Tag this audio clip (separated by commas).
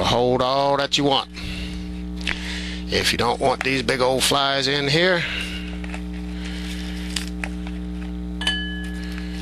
Speech